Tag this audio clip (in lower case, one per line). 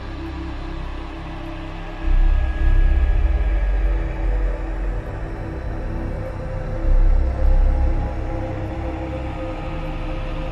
heavy metal
music